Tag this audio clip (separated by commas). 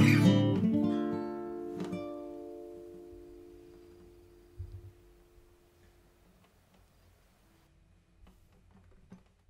Acoustic guitar, Music, Guitar